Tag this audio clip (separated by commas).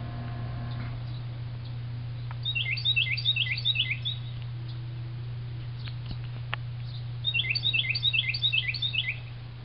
Bird vocalization, tweet, Bird